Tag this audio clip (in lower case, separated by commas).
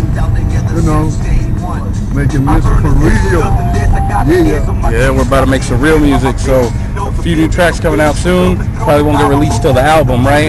speech, music